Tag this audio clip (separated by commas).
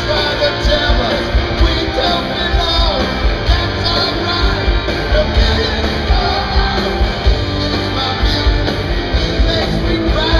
Music